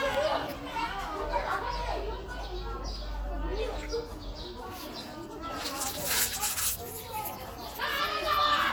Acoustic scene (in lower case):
park